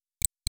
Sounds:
Tick

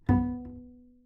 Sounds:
Music, Bowed string instrument, Musical instrument

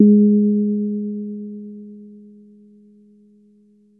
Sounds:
Musical instrument, Piano, Keyboard (musical), Music

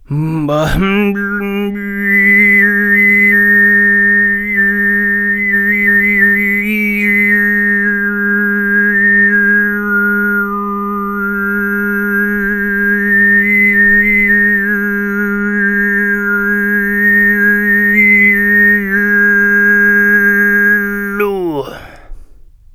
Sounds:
Singing, Human voice

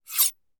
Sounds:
Domestic sounds, Cutlery

